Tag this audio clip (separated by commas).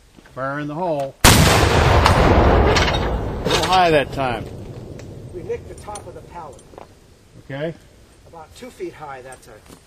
firing cannon